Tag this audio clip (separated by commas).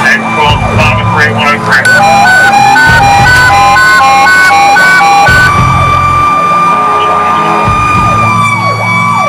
Police car (siren), Siren, Ambulance (siren), Car alarm, Emergency vehicle